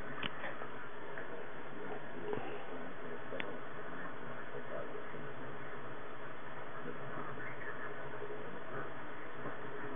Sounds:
speech

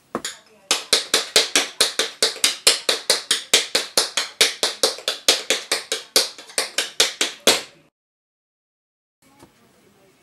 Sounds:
tap

